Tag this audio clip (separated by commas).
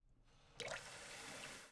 Domestic sounds, Water, Water tap